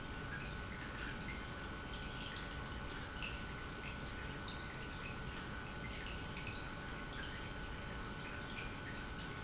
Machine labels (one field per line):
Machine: pump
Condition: normal